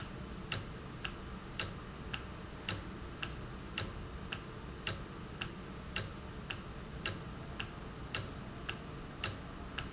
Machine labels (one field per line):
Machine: valve